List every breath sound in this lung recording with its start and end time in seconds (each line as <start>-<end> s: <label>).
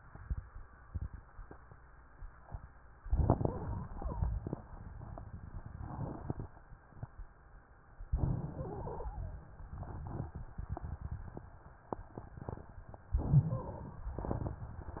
3.03-4.30 s: inhalation
3.46-4.30 s: wheeze
8.09-9.36 s: inhalation
8.54-9.37 s: wheeze
13.08-14.08 s: inhalation
13.47-14.08 s: wheeze